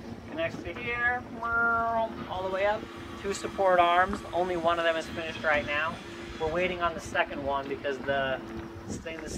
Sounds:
speech

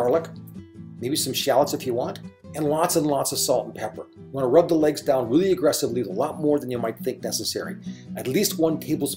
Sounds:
speech, music

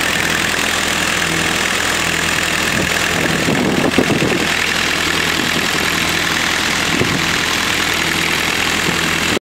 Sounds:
idling, engine, medium engine (mid frequency)

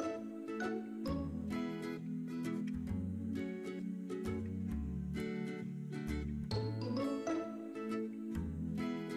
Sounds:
music

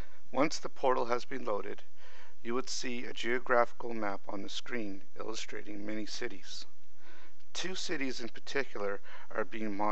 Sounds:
speech

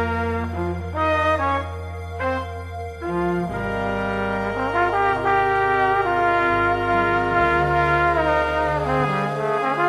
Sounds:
musical instrument, playing trumpet, trombone, trumpet, music, brass instrument, jazz

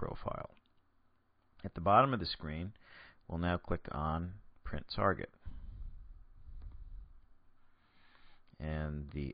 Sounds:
speech

